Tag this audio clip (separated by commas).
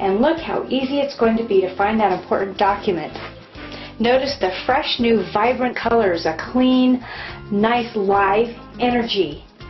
Speech, Music